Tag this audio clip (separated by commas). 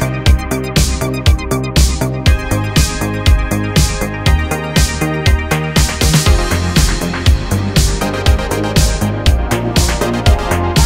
Music